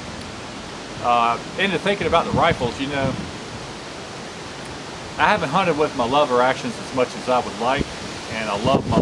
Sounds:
pink noise, speech

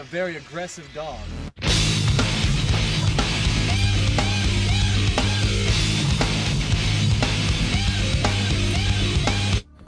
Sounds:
music, speech

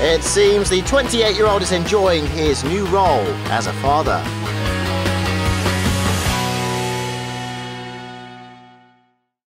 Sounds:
speech, music

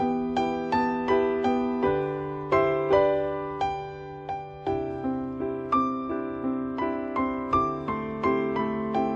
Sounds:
middle eastern music, new-age music, music

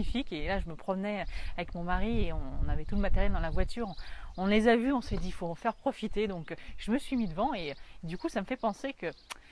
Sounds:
speech

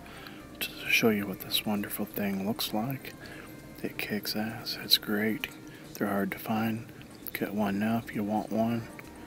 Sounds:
speech

